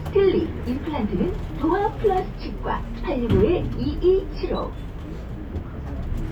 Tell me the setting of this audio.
bus